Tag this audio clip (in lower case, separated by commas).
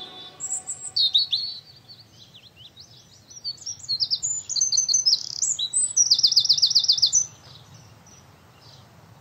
chirp, outside, rural or natural